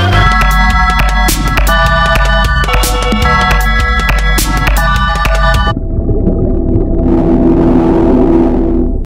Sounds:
Music

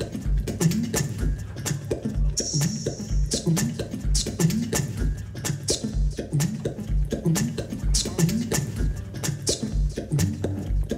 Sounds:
Music

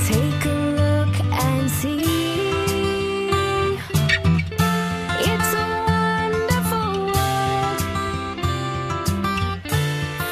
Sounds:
Music

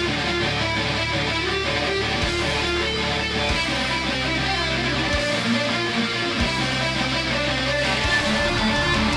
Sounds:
Music

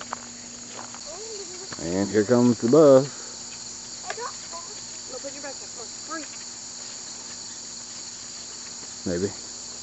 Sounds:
Insect, Cricket

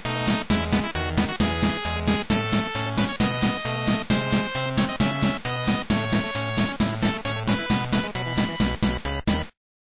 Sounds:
Music

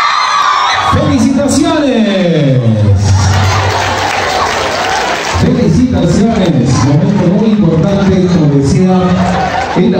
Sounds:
people battle cry

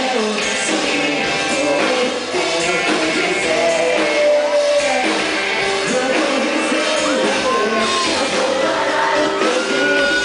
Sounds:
Dance music, Funk, Music

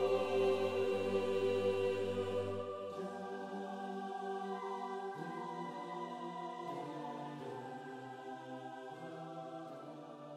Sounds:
Chant

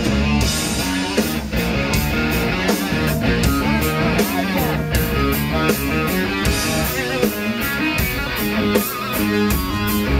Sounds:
Music

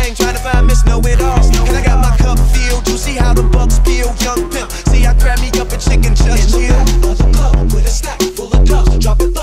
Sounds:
Music, Dubstep

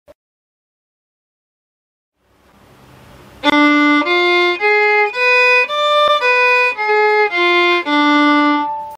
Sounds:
Violin, Music, Musical instrument

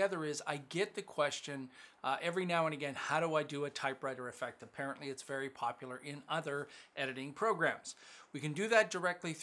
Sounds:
Speech

